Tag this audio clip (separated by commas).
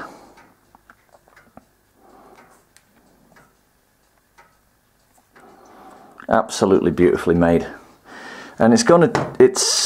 Speech, Clock